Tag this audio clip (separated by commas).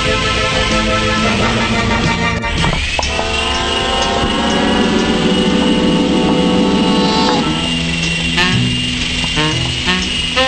Music